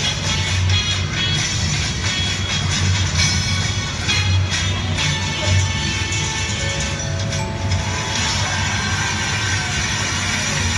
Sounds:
music

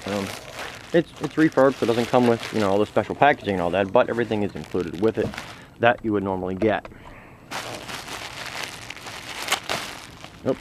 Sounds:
speech

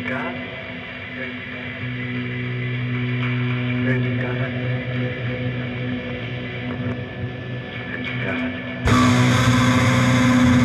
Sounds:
heavy metal, music, speech

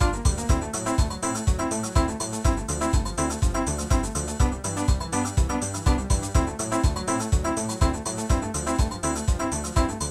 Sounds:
video game music, music

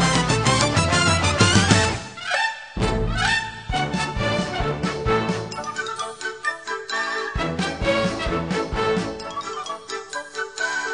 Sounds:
music

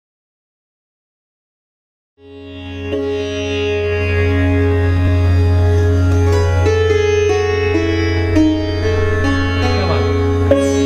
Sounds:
music, speech, carnatic music, sitar, plucked string instrument, musical instrument

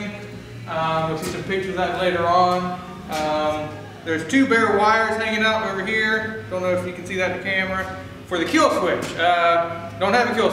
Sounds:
speech

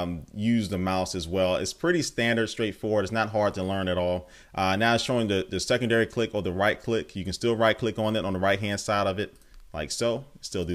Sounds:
speech

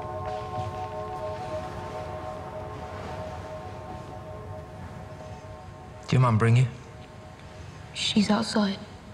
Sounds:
inside a large room or hall, music, speech

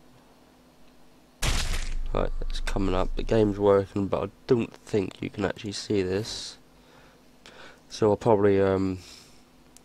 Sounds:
speech

